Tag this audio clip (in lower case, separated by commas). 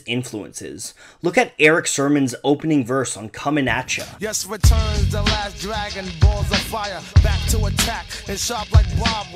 rapping